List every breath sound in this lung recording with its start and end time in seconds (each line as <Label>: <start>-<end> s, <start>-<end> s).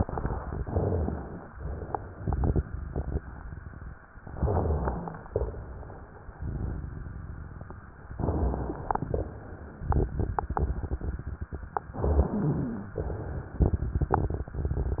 Inhalation: 0.57-1.51 s, 4.33-5.12 s, 8.16-8.99 s, 11.95-12.92 s
Exhalation: 1.50-2.25 s, 5.31-6.24 s, 9.05-9.89 s, 13.00-13.59 s
Rhonchi: 0.57-1.51 s, 4.33-5.12 s, 8.16-8.99 s, 11.95-12.92 s
Crackles: 2.22-3.94 s, 6.36-8.03 s, 9.87-11.92 s, 13.57-15.00 s